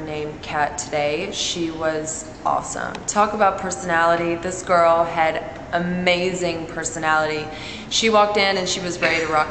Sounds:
speech

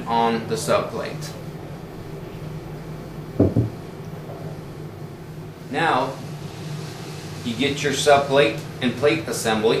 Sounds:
speech

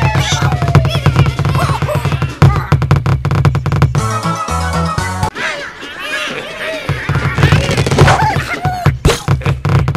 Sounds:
music

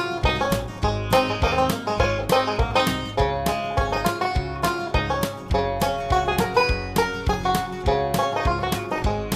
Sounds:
music

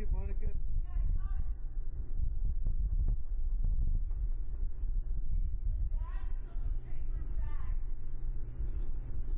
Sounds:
speech
wind noise (microphone)

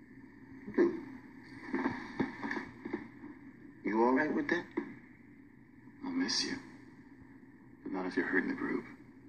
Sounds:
inside a small room
speech

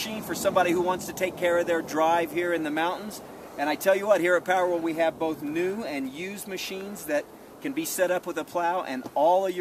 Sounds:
speech

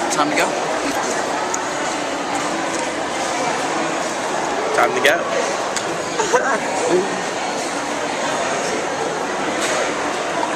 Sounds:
speech
inside a public space

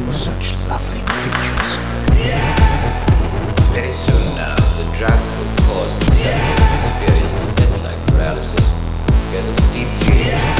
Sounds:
music

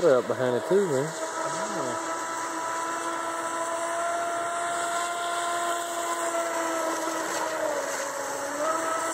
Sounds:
speech

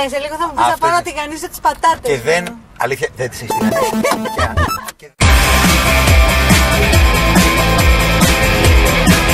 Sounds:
grunge

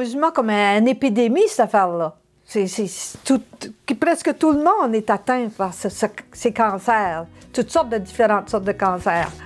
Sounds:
speech
music

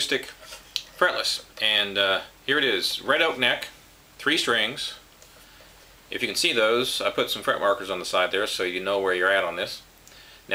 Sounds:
speech

